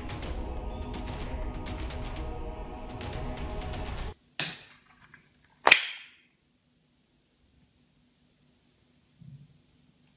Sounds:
cap gun shooting

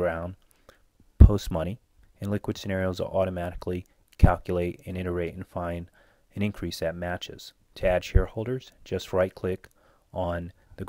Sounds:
Speech

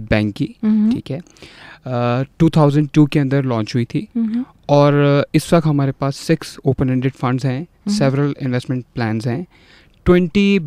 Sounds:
Speech

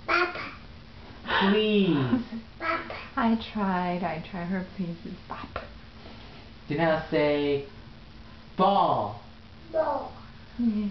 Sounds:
Speech

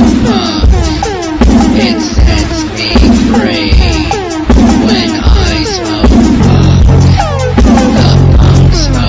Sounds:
Punk rock, Music

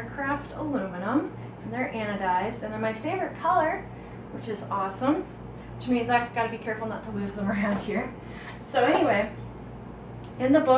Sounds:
Speech

